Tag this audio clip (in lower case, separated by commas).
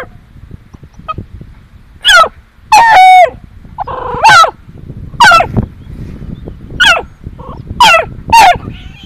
frog